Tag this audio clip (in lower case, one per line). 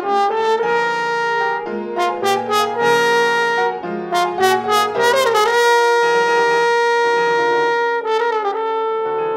playing french horn
brass instrument
french horn
piano
music
musical instrument